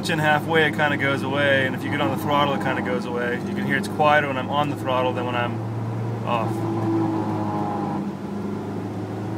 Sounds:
speech

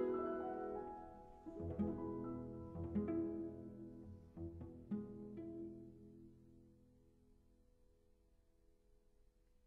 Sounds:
musical instrument, music, cello, bowed string instrument, piano

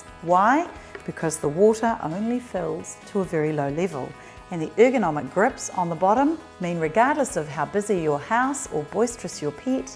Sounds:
speech, music

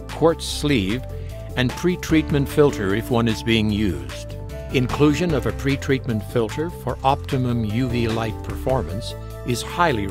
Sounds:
music, speech

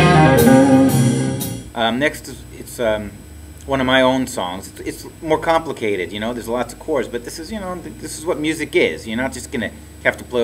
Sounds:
strum, musical instrument, speech, guitar, music

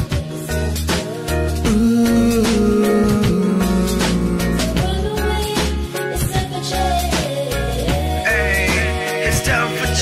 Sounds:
jazz, music

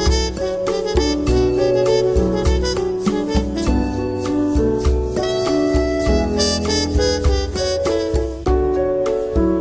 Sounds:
music

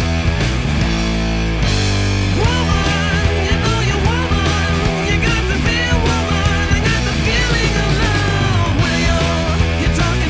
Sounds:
musical instrument, plucked string instrument, strum, guitar, electric guitar, music, bass guitar

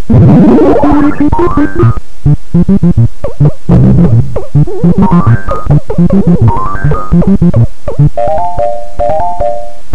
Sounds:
music, video game music

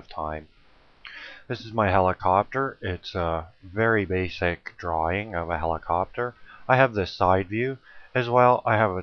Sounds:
speech

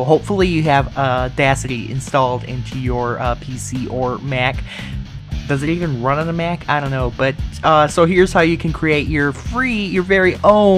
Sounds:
music, speech

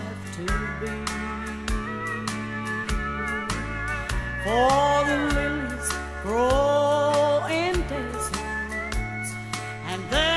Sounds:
music

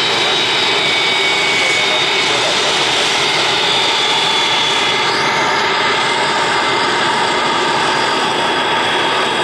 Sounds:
aircraft engine, aircraft, fixed-wing aircraft, vehicle, outside, urban or man-made

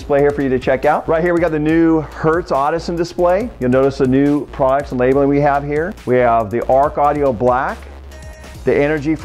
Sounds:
speech, music

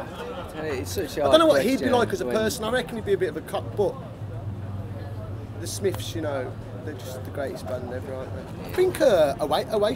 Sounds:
speech

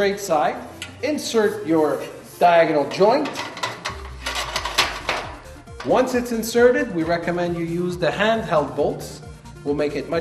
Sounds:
music, speech, inside a small room

